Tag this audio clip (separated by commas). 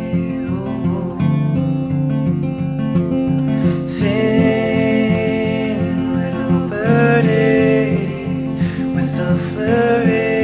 Music